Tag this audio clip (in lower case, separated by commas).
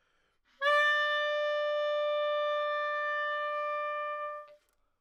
music, wind instrument, musical instrument